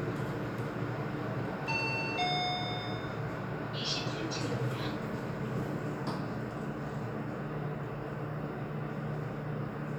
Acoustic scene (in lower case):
elevator